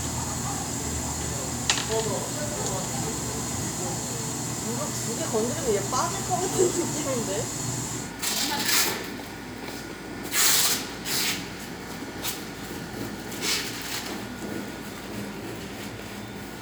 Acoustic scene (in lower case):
cafe